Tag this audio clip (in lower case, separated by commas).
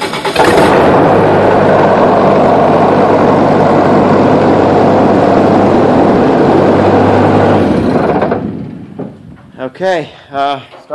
engine starting, aircraft, idling, speech, heavy engine (low frequency)